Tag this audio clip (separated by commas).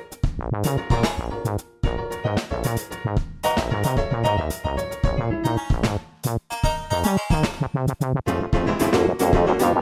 Music